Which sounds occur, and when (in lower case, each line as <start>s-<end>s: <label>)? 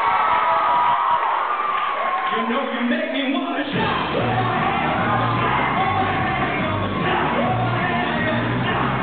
0.0s-2.8s: shout
0.0s-9.0s: cheering
2.3s-5.5s: male singing
3.6s-9.0s: music
4.2s-6.9s: shout
5.8s-8.9s: male singing